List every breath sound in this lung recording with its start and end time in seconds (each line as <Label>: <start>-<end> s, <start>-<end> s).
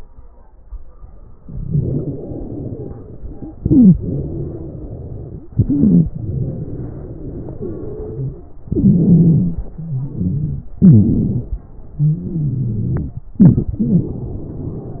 Inhalation: 3.58-3.96 s, 5.56-6.13 s, 8.70-9.62 s, 10.78-11.69 s, 13.36-13.77 s
Exhalation: 1.65-3.44 s, 3.98-5.46 s, 6.15-8.43 s, 9.68-10.71 s, 11.98-13.30 s, 13.80-15.00 s
Wheeze: 1.65-3.44 s, 3.58-3.96 s, 3.98-5.46 s, 5.56-6.13 s, 6.15-8.43 s, 8.70-9.62 s, 9.68-10.71 s, 10.78-11.69 s, 11.98-13.30 s, 13.36-13.77 s, 13.80-15.00 s